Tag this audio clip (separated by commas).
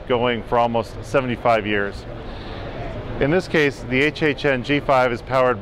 Speech